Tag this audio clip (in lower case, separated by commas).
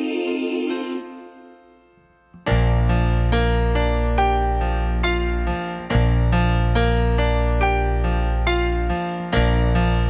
music